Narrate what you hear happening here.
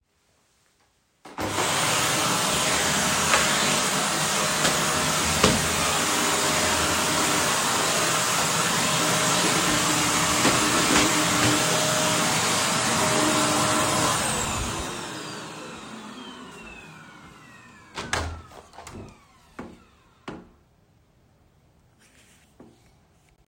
While I am vacuming I opened the window.